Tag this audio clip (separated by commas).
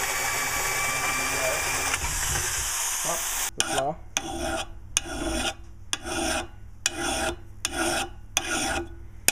Tools, Power tool, Drill